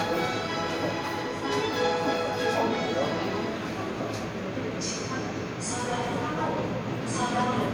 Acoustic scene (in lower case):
subway station